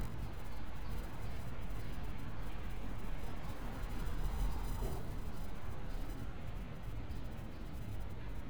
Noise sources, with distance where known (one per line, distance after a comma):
background noise